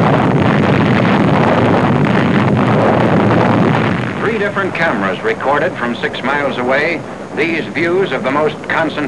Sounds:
explosion
speech

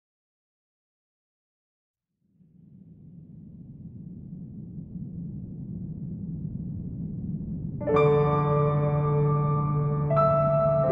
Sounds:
music

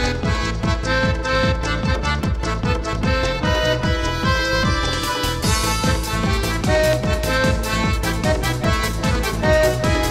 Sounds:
music
house music

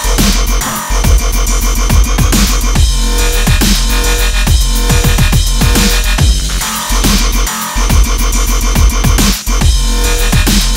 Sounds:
dubstep
drum and bass
music
electronic music

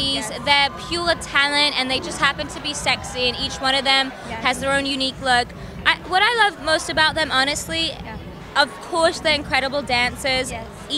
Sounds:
speech

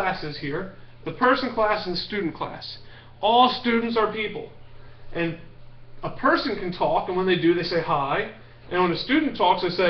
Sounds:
speech

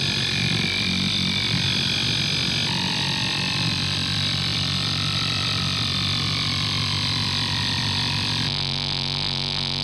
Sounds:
distortion
effects unit
noise

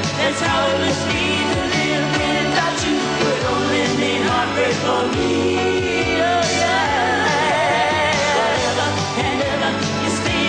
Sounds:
music
singing
pop music

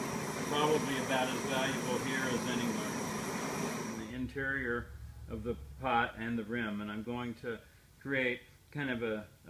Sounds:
speech
inside a small room

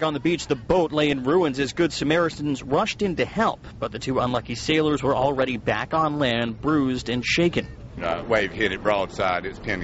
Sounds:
speech

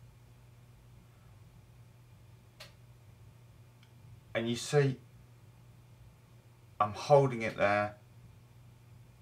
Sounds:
speech

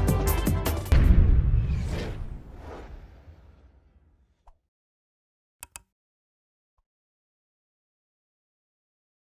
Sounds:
music

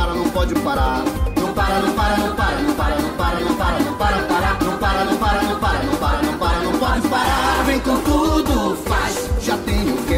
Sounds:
music
jingle (music)

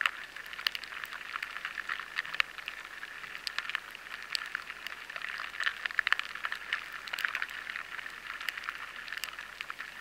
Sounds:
noise

